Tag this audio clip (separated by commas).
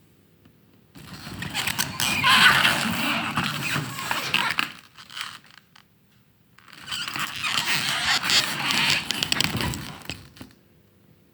Sliding door, Door, home sounds